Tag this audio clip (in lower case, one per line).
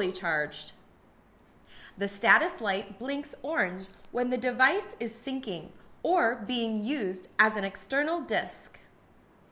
speech